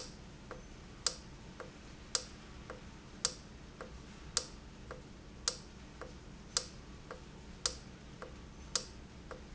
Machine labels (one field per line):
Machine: valve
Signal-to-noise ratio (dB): 6 dB